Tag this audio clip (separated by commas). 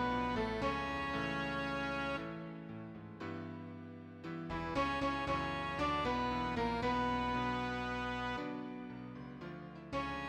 Music, Tender music